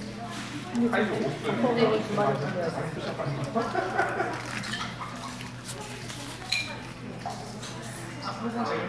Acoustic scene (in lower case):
crowded indoor space